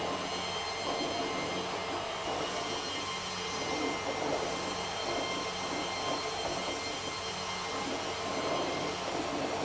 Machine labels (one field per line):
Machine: pump